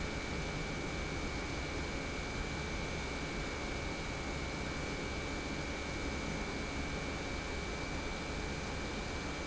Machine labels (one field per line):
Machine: pump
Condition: normal